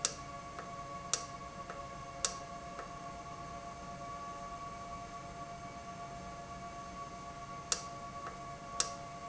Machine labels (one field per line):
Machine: valve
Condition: normal